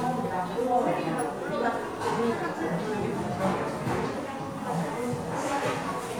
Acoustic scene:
crowded indoor space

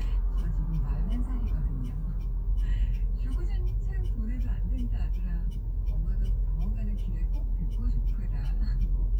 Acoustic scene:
car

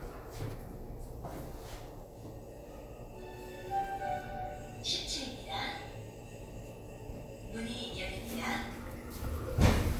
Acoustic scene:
elevator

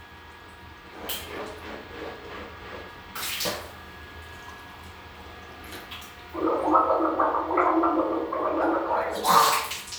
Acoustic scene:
restroom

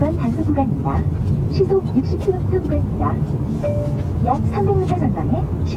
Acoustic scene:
car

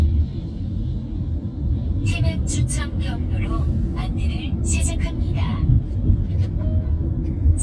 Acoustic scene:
car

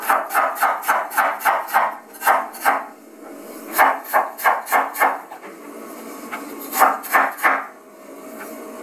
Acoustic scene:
kitchen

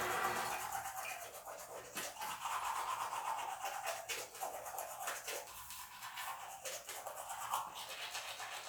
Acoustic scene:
restroom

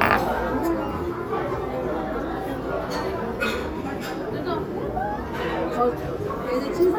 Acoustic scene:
restaurant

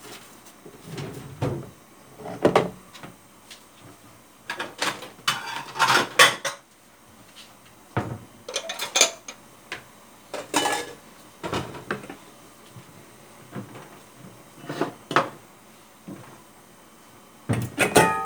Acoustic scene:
kitchen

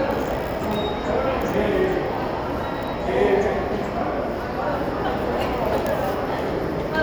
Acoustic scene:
subway station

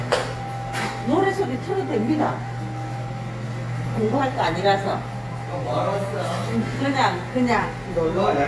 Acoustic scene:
cafe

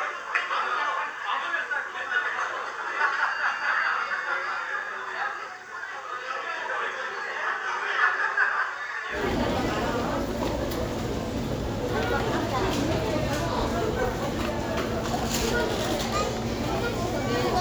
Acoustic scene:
crowded indoor space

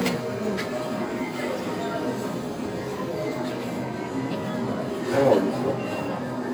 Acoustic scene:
crowded indoor space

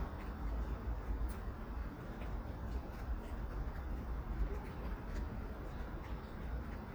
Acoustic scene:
residential area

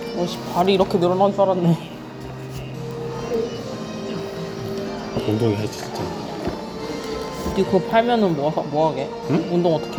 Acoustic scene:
cafe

